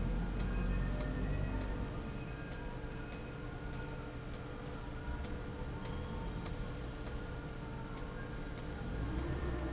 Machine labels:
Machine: slide rail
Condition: abnormal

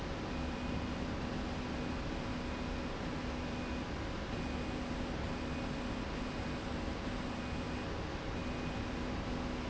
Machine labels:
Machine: slide rail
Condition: normal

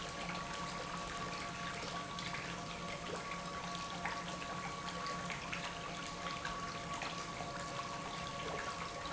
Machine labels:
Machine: pump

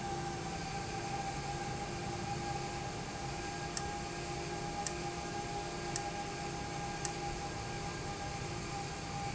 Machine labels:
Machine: valve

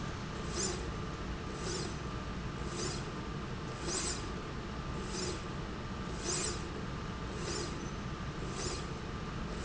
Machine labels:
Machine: slide rail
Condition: normal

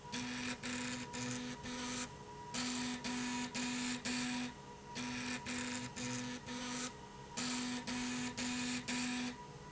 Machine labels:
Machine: slide rail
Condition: abnormal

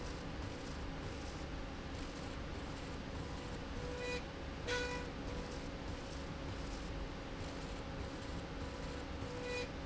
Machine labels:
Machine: slide rail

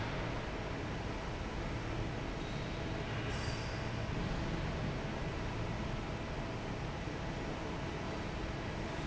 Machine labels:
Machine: fan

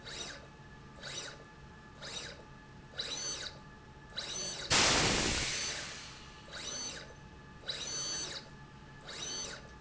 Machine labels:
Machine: slide rail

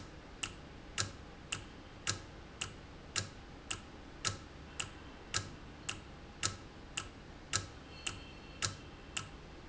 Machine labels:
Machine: valve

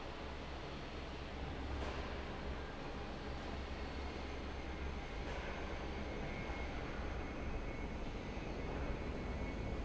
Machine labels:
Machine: fan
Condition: abnormal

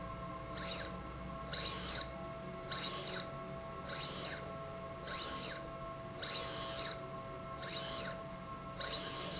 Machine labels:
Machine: slide rail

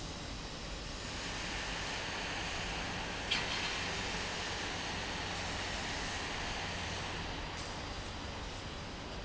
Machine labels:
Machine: fan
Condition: abnormal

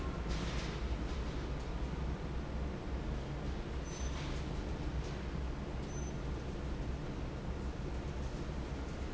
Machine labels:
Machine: fan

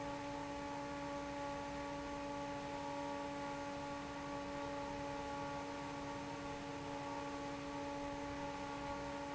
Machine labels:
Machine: fan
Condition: normal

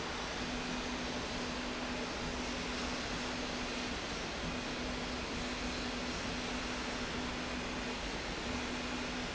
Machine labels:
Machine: slide rail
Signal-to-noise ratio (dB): -6 dB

